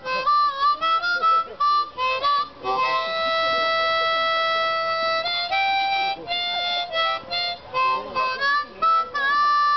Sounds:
Music, Speech

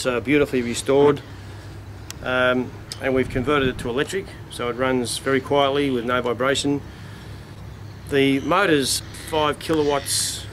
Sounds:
Speech

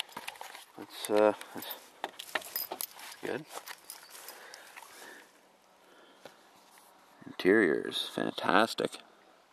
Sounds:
Speech, Walk

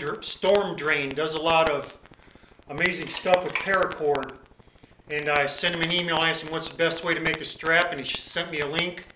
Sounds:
Speech

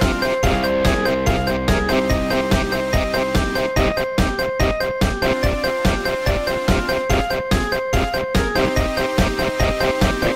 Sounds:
Techno, Music, Electronic music

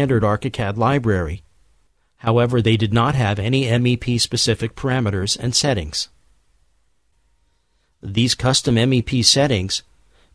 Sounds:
Speech

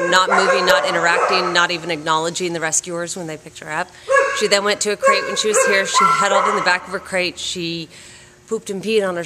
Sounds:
Animal, Bow-wow, pets, Speech, Dog

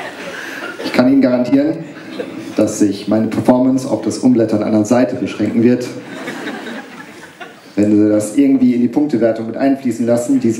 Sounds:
Speech

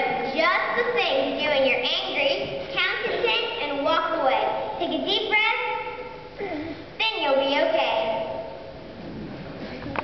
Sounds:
Speech

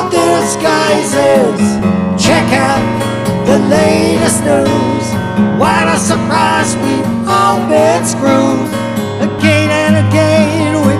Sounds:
Acoustic guitar, Plucked string instrument, Musical instrument, Music, Guitar

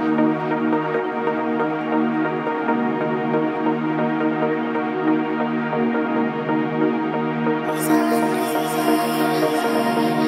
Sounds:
Music, Song, Trance music

